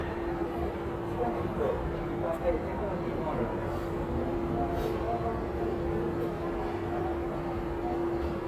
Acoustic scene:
crowded indoor space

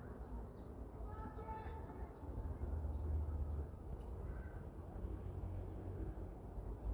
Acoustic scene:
residential area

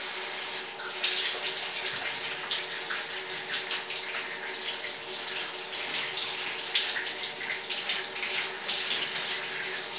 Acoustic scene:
restroom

